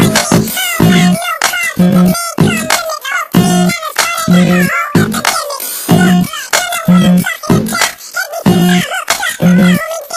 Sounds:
Music

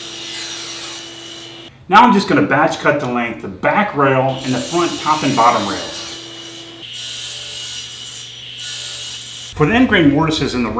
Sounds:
Speech, Wood, Tools

